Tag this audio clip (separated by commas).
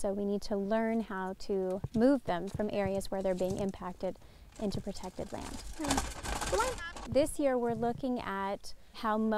Speech